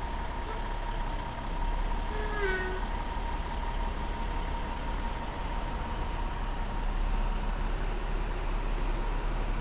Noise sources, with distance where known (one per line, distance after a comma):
large-sounding engine, near